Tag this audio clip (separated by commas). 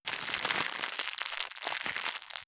Crackle